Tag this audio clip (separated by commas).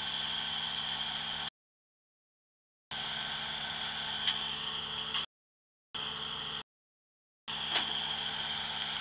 Vehicle